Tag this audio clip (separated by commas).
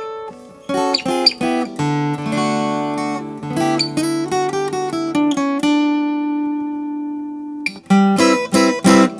Music, Musical instrument, Guitar, inside a small room, Plucked string instrument